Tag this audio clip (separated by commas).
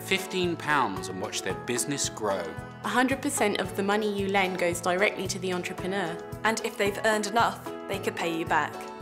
Music, Speech